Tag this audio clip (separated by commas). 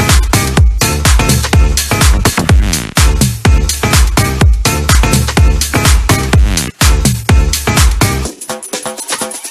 people shuffling